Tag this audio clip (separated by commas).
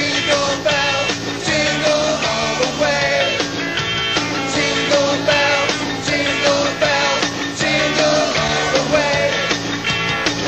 Music, Christmas music